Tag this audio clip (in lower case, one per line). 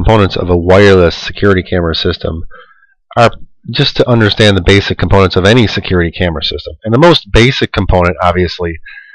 speech